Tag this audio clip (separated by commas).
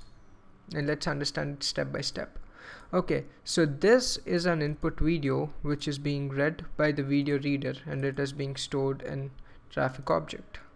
Speech